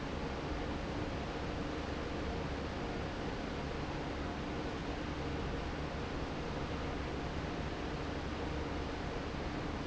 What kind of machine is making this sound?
fan